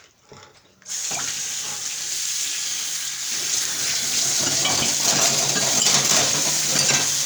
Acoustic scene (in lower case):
kitchen